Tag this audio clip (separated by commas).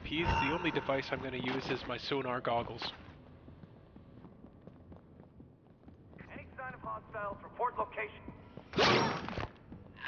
Speech